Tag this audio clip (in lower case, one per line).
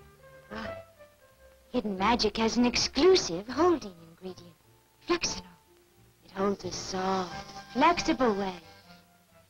speech
spray
music